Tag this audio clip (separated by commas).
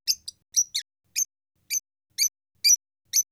Bird, Animal, Wild animals